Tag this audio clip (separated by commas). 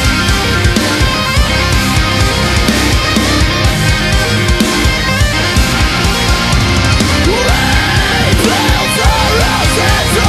Music